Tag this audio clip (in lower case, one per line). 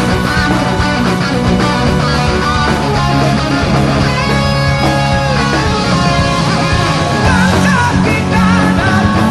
music